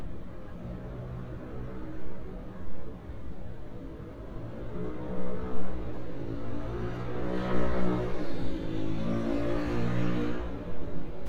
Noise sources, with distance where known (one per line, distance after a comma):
small-sounding engine, near